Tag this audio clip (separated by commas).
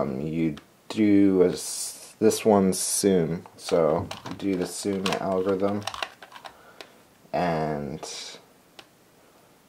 Speech